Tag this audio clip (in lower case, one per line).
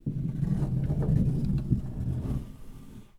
door
home sounds
sliding door